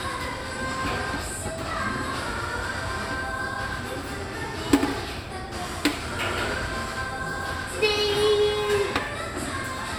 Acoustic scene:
cafe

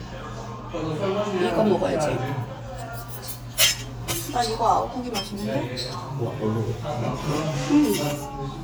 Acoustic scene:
restaurant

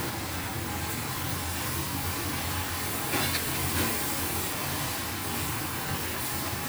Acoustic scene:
restaurant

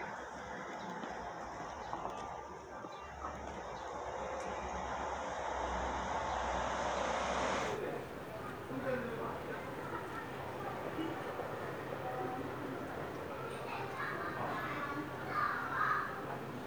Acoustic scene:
residential area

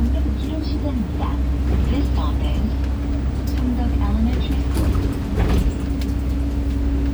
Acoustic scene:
bus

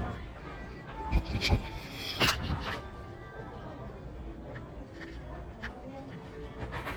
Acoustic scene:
crowded indoor space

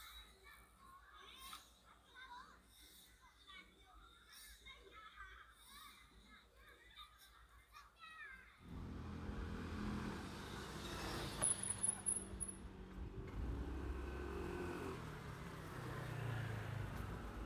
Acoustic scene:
residential area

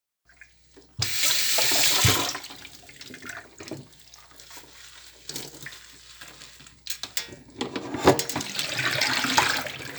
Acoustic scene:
kitchen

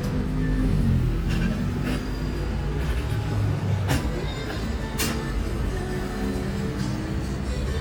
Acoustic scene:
street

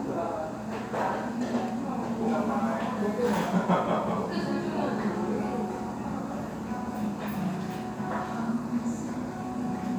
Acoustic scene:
restaurant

